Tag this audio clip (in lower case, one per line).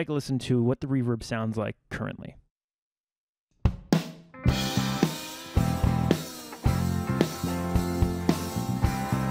speech
music
drum
drum kit
musical instrument